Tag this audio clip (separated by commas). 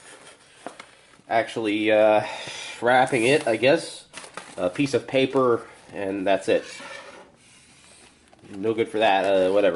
Speech